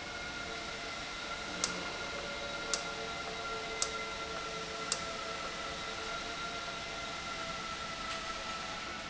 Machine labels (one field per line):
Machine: valve